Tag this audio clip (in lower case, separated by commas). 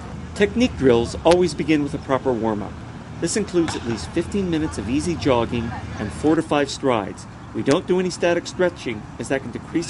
outside, urban or man-made, speech